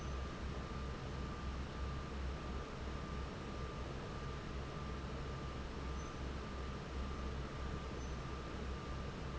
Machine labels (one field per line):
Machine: fan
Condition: normal